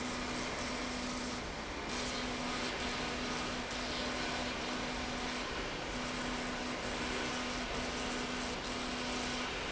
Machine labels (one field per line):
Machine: slide rail